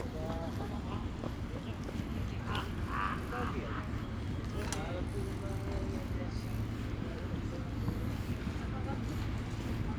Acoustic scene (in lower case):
park